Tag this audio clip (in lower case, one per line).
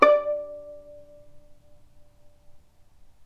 music
bowed string instrument
musical instrument